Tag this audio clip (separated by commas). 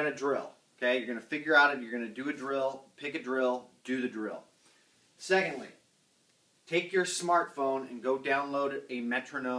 Speech, inside a small room